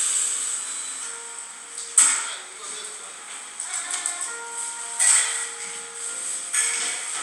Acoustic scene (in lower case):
cafe